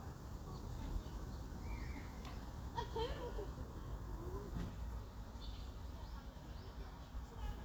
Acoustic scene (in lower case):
park